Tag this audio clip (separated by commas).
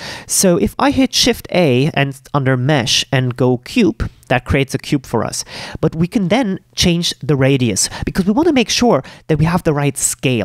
Speech